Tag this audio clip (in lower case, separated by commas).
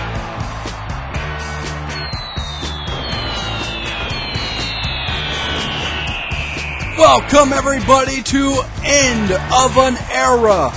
music, speech